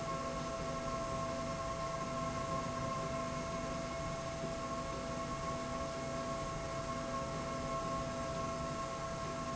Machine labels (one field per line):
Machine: slide rail